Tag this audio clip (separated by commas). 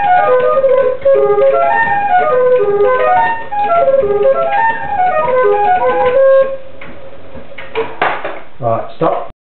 Tick-tock, Music, Speech, Flute